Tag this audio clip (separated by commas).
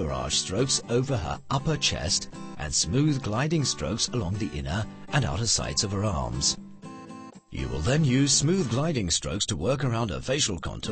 Speech synthesizer